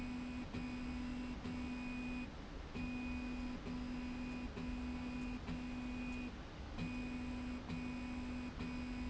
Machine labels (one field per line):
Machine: slide rail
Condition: normal